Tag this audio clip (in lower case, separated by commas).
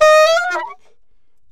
woodwind instrument, musical instrument, music